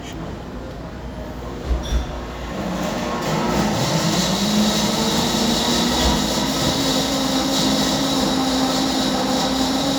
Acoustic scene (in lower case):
cafe